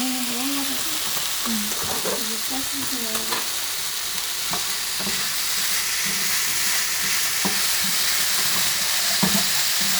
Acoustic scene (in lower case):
kitchen